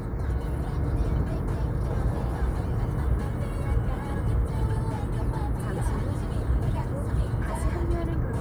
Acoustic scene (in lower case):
car